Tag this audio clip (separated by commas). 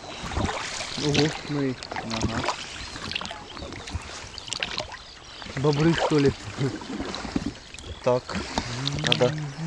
Speech, Vehicle, Boat